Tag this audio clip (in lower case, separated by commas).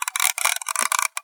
clock, mechanisms